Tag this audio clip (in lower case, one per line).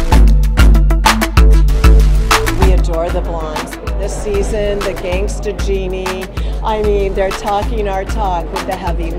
music
speech